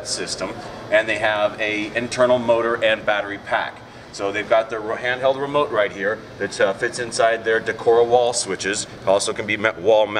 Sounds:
Speech

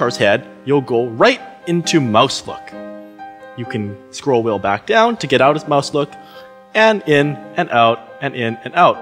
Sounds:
Music, Speech

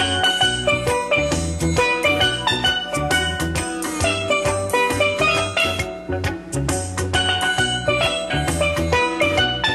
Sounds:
Musical instrument, Music, Drum, Drum kit

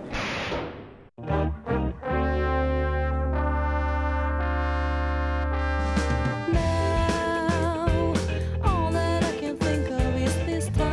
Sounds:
Brass instrument, Trumpet, Trombone

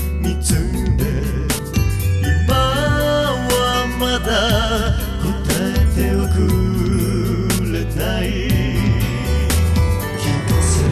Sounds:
Music

